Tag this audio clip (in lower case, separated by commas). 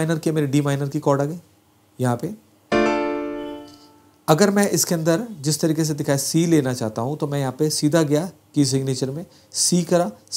playing tambourine